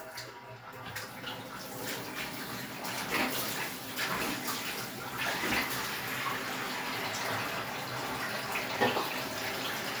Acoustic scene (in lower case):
restroom